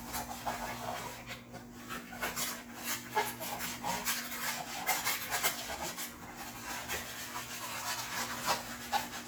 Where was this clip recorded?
in a kitchen